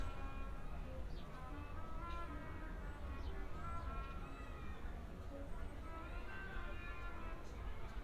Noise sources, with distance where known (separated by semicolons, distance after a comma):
music from a fixed source, far